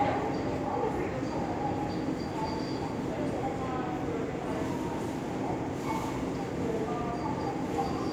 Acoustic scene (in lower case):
subway station